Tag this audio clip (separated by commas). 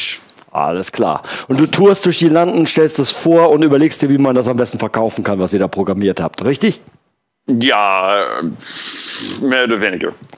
Speech